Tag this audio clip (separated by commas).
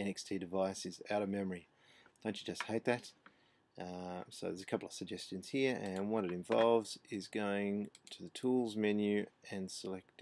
Speech